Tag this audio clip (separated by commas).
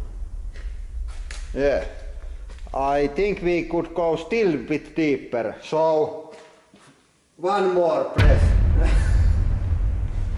Speech